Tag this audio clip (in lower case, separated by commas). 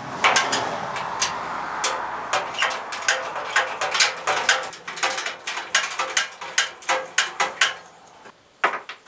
inside a small room